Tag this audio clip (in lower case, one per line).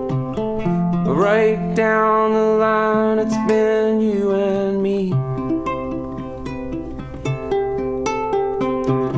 singing
flamenco